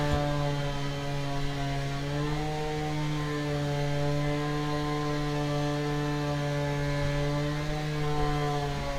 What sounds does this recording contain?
small-sounding engine